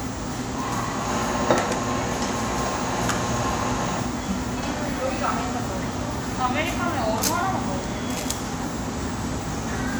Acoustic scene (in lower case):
crowded indoor space